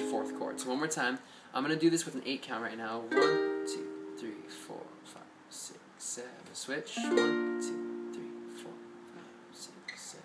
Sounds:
music, plucked string instrument, speech, ukulele, musical instrument

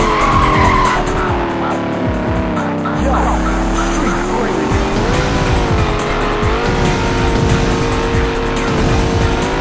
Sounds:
music

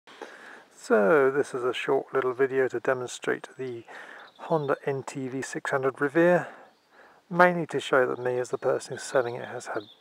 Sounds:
outside, urban or man-made, speech

